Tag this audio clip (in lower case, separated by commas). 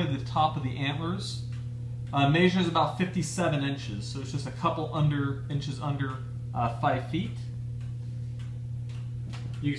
speech, tick, tick-tock